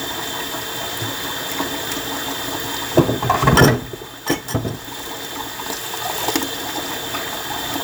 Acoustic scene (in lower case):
kitchen